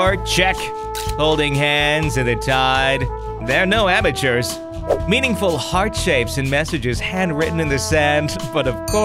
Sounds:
Music, Speech

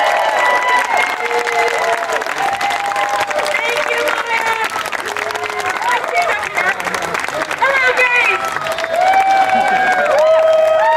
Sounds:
Female speech, Speech

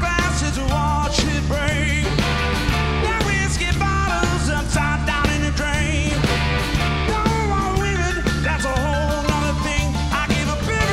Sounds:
Exciting music, Music

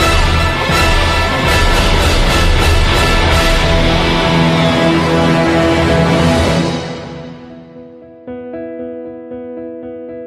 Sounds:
Music, Theme music

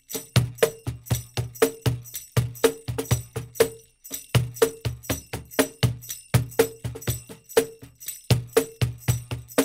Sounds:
Music, Tambourine

